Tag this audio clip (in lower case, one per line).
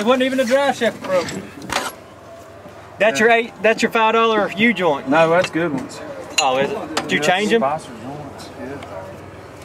outside, rural or natural
speech